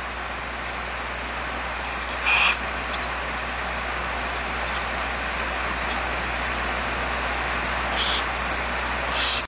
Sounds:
owl

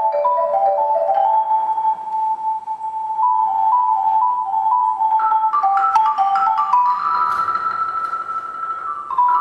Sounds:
glockenspiel, marimba, mallet percussion

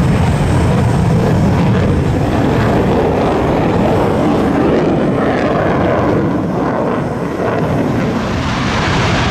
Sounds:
airplane flyby

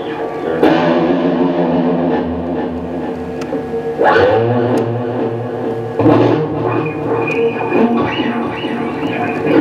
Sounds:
musical instrument, music

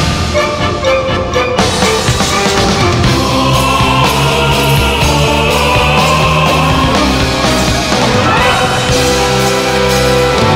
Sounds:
music

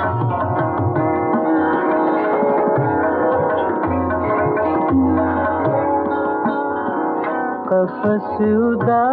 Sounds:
sitar, music

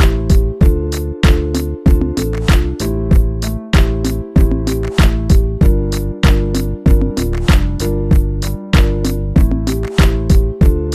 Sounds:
music

